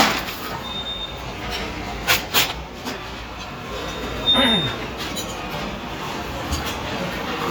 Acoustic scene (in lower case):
restaurant